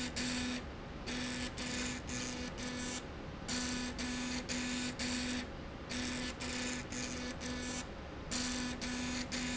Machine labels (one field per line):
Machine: slide rail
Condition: abnormal